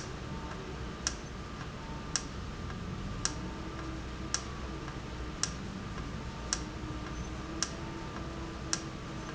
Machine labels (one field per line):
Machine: valve